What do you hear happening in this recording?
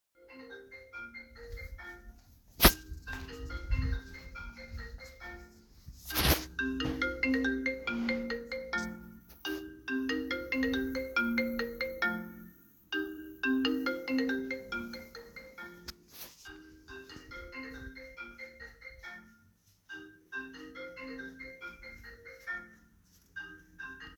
I started walking around the living room while holding the phone. While I was walking another phone started ringing nearby. The ringing sound overlaps with the footsteps.